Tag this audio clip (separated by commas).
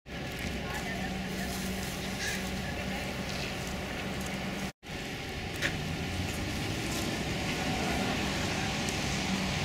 inside a large room or hall, Speech